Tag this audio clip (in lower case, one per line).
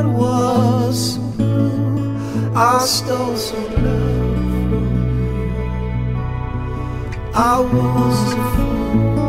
tender music
music